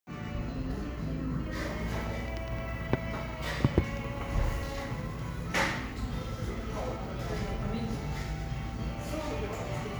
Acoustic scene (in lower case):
cafe